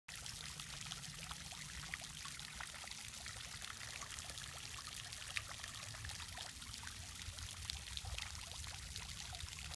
Water is running, gurgling, and splashing